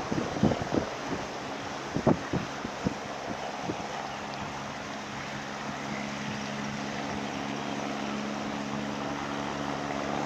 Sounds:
Wind noise (microphone), Wind

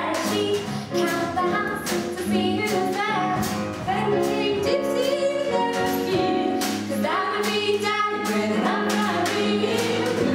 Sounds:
Exciting music, Music

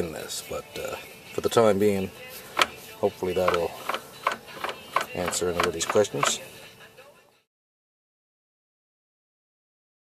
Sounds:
Silence, Music, Speech

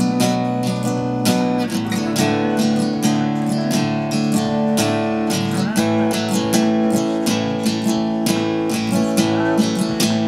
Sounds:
Music, Strum, Musical instrument, Guitar, Plucked string instrument, Acoustic guitar

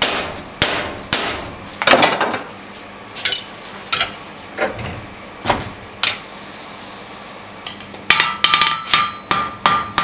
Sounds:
forging swords

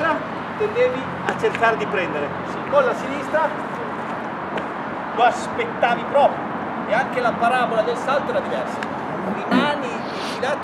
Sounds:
outside, urban or man-made, Speech

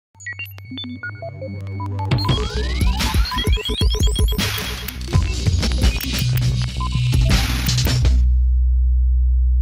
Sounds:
Sampler

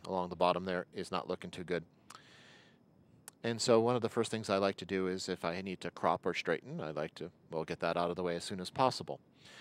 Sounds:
Speech

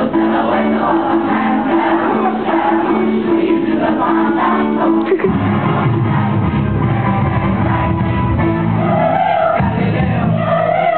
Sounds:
Choir, Music

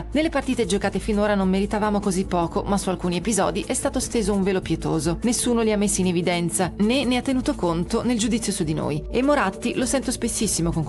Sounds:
Speech, Music

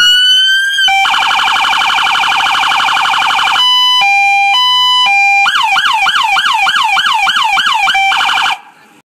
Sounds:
Siren, Police car (siren)

